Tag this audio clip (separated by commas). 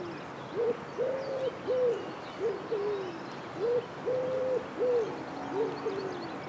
Animal, Bird, Wild animals